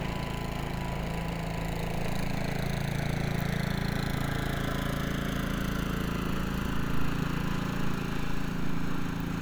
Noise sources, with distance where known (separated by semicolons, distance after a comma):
jackhammer